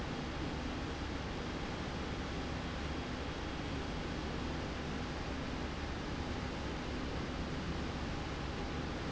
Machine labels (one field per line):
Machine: slide rail